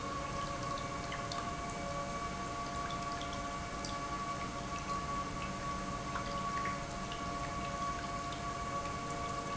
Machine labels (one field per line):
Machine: pump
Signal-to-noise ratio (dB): -6 dB